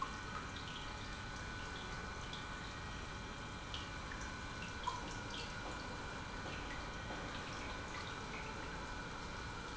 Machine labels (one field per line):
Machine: pump